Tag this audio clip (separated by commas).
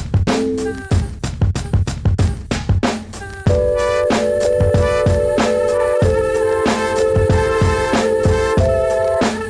Music